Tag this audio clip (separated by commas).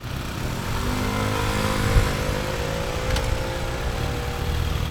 Vehicle, Motor vehicle (road), vroom, Motorcycle, Engine